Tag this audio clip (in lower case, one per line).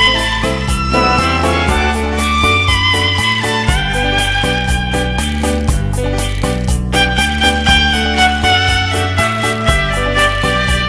musical instrument
fiddle
pizzicato
music